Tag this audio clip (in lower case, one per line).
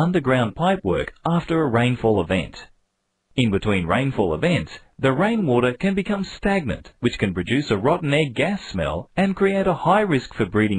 speech